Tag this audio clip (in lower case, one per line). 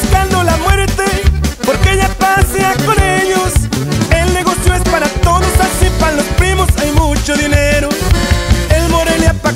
music of latin america
music